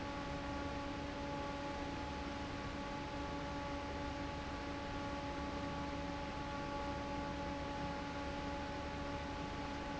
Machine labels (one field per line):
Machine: fan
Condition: normal